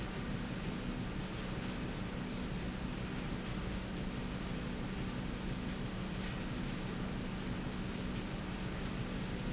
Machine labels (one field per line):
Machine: slide rail